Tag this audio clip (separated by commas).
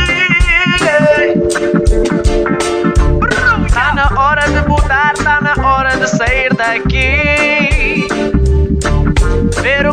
Music, Reggae